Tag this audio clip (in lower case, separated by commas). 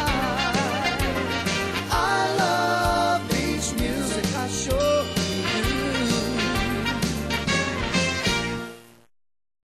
music, dance music